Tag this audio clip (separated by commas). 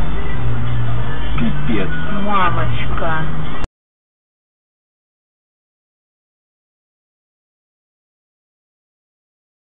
Music, Speech